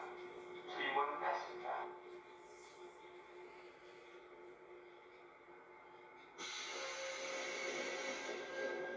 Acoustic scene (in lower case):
subway train